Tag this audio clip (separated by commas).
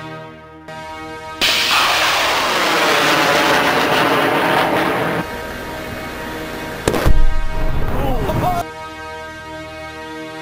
Artillery fire, gunfire